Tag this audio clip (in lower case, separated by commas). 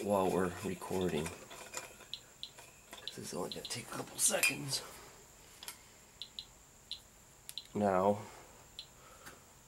speech, inside a small room